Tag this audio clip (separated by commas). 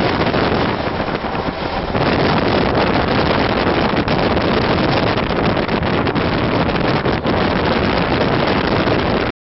Vehicle